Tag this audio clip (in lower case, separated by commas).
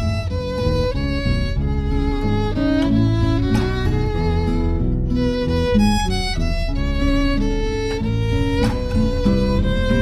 violin, music, musical instrument